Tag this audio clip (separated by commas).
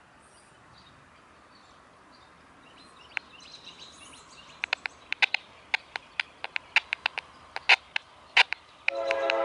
Train, Rail transport, Vehicle, Environmental noise, Railroad car